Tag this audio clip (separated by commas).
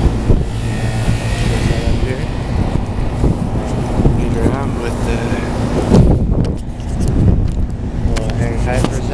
Traffic noise, Speech